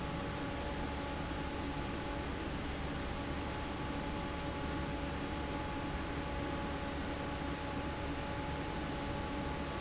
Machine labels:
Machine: fan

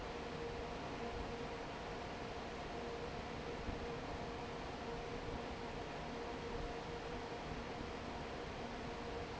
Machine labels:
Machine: fan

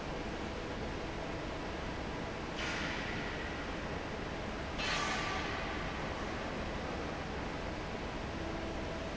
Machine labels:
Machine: fan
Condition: normal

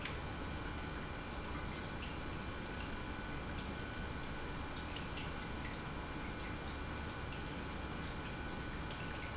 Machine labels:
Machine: pump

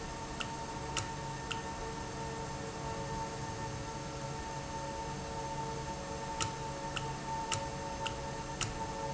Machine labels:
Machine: valve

